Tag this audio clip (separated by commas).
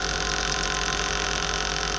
Tools